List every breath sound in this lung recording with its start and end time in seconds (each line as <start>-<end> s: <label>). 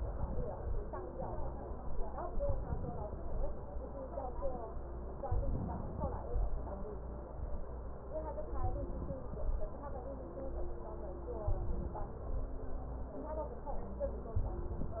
0.00-0.81 s: inhalation
2.41-3.59 s: inhalation
5.26-6.44 s: inhalation
8.55-9.73 s: inhalation
11.48-12.52 s: inhalation
14.39-15.00 s: inhalation